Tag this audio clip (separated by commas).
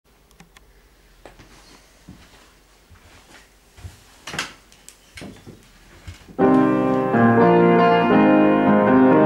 inside a small room, Music, Keyboard (musical), Musical instrument, Piano